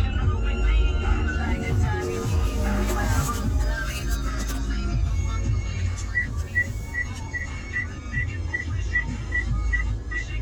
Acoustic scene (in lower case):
car